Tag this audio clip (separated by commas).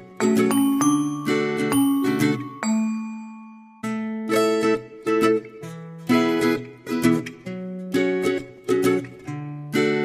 Glockenspiel, xylophone, Mallet percussion